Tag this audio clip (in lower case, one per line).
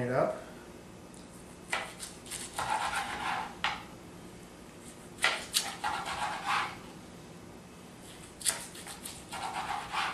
speech